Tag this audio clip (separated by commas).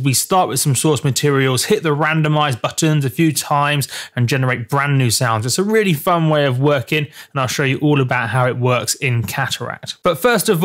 Speech